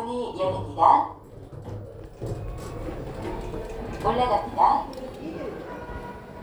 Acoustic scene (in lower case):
elevator